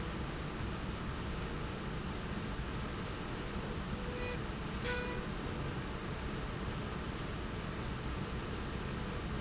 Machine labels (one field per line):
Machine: slide rail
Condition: normal